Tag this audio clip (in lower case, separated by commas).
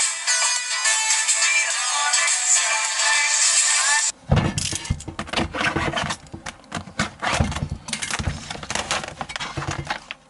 inside a small room, music